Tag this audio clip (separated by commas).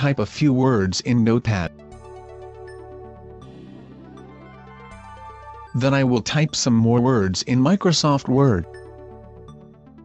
Speech, Music